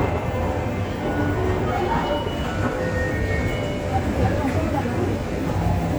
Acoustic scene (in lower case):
subway station